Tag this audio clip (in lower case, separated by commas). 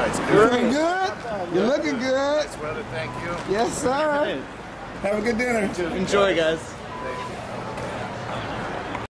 speech